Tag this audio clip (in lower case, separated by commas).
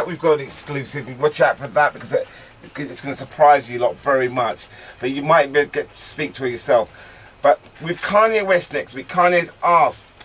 speech